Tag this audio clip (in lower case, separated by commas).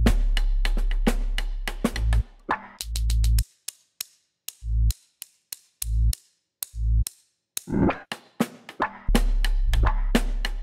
drum, percussion, snare drum